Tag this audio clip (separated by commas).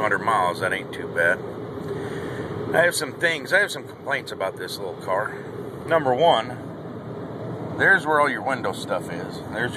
Speech, Vehicle